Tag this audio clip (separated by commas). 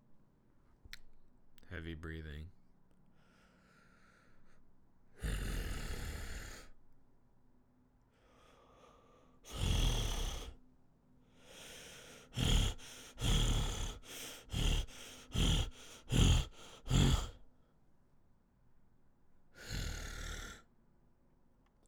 Respiratory sounds, Breathing